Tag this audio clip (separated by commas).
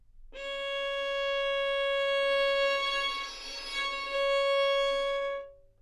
Music, Musical instrument, Bowed string instrument